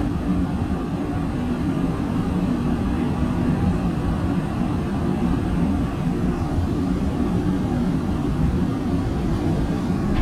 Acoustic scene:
subway train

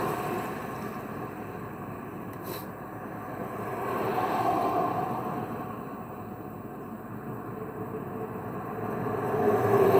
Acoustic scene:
street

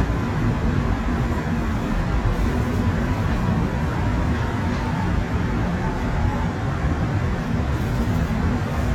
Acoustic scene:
subway train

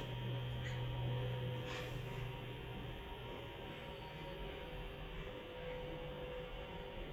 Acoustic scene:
elevator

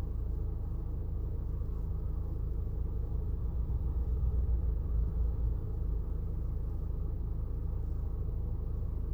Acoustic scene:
car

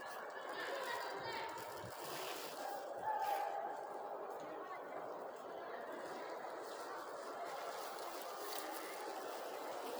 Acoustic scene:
residential area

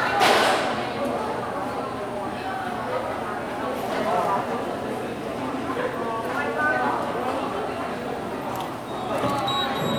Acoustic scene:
subway station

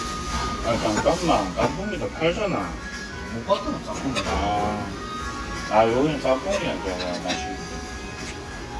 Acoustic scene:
restaurant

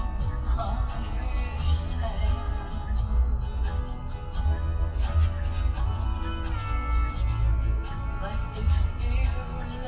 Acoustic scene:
car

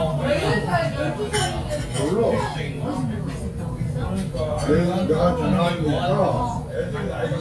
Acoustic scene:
restaurant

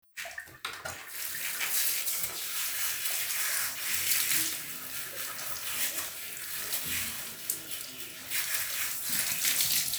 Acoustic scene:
restroom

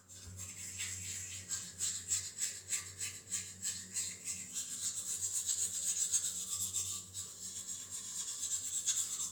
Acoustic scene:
restroom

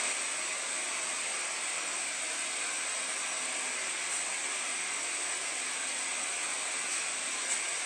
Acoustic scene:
subway station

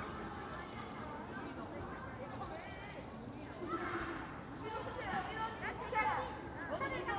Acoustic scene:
park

